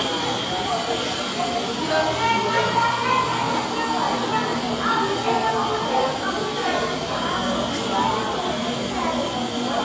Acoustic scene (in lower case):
cafe